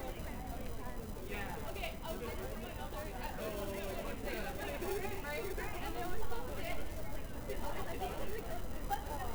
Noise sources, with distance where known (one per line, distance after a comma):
person or small group talking, near